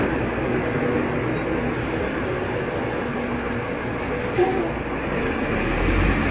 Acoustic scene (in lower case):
street